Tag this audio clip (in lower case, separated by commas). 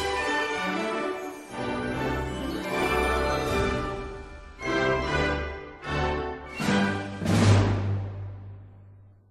theme music, soundtrack music, music